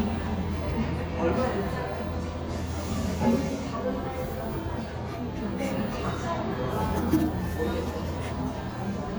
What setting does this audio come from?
cafe